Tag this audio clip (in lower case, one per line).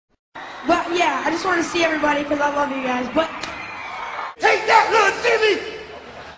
speech